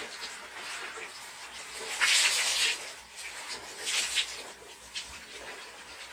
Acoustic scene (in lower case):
restroom